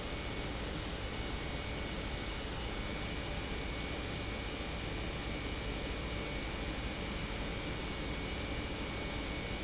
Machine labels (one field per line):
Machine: pump